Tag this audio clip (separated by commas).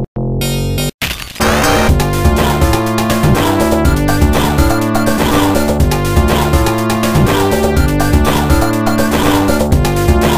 Music